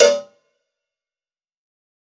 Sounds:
Cowbell, Bell

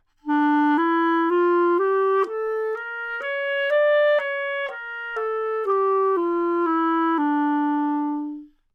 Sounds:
Music, Wind instrument, Musical instrument

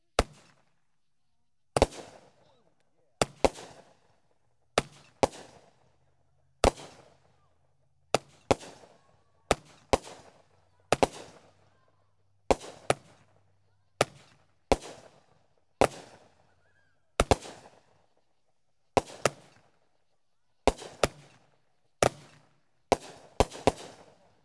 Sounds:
Fireworks, Explosion

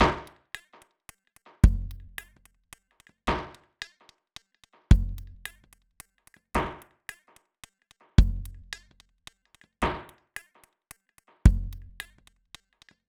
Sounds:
Musical instrument, Percussion, Music, Drum kit

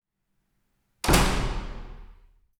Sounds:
Door, Wood, home sounds, Slam

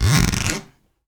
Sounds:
Zipper (clothing), Domestic sounds

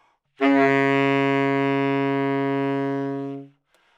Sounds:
Music, Musical instrument, woodwind instrument

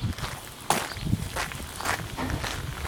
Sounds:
Wild animals, Walk, bird song, Animal, Bird

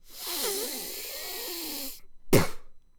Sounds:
Breathing, Respiratory sounds

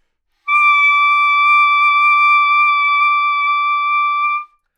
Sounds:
Music, Wind instrument, Musical instrument

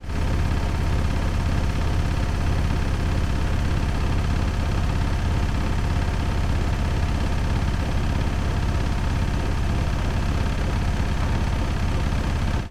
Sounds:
Engine

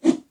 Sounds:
Whoosh

